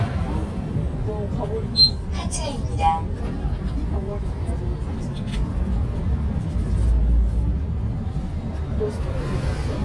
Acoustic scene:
bus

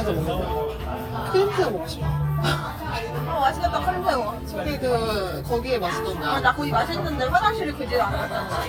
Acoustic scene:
crowded indoor space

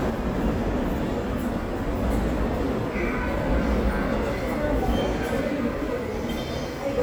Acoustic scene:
subway station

